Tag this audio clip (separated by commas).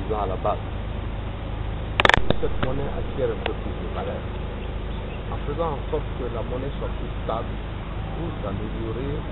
outside, rural or natural, Speech